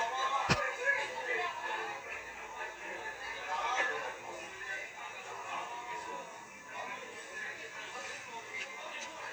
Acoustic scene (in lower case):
restaurant